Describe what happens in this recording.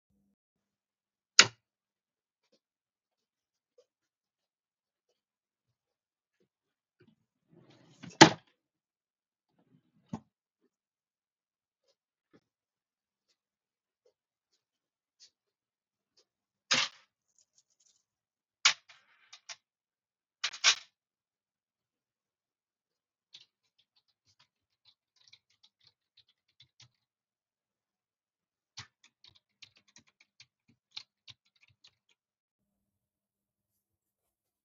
Switched on the lights. opened and closed a drawer. used the keyboard to type.